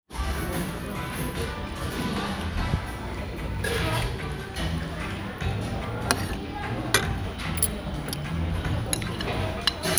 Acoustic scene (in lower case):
restaurant